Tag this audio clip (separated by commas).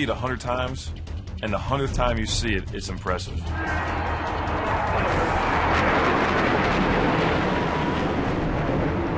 airplane flyby